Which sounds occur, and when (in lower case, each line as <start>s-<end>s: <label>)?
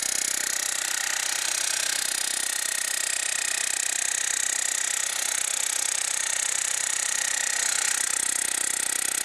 0.0s-9.2s: jackhammer